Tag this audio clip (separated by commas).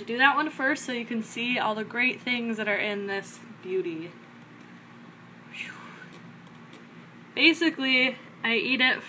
Speech